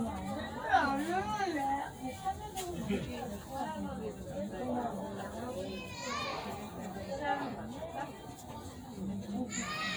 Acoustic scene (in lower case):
residential area